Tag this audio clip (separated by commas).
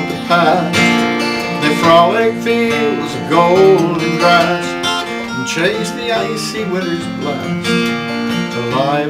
Plucked string instrument, Musical instrument, Music, Country, Guitar